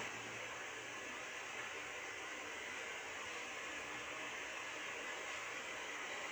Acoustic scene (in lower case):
subway train